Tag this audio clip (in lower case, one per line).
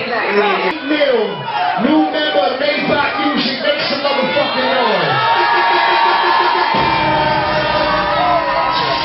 music
speech